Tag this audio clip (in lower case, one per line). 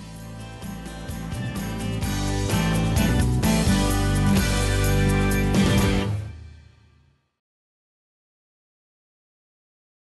music